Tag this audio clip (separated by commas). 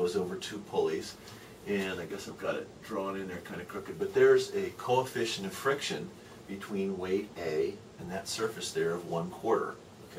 Speech